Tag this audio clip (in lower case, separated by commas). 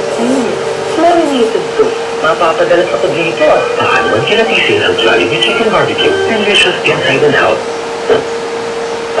speech, music